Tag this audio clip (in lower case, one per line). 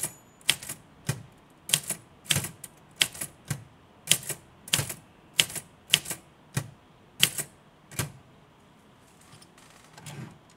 typing on typewriter